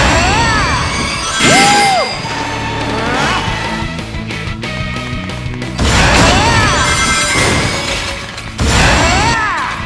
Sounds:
music

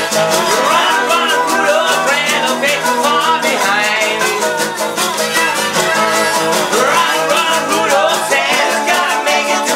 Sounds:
music

